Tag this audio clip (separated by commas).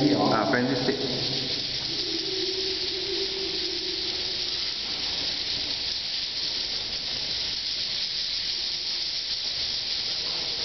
Speech